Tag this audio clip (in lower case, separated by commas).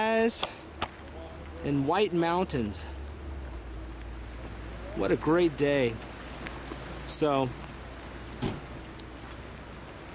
speech